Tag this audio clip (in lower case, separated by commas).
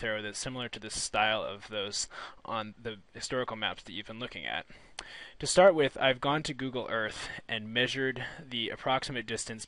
speech